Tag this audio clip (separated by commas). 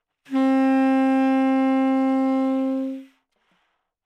woodwind instrument, Musical instrument, Music